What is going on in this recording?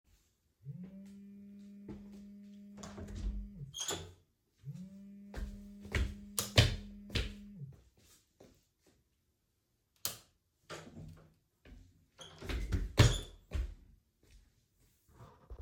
My phone started ringing. I opened the door and flipped the light switch, stopped my phone and closed the door.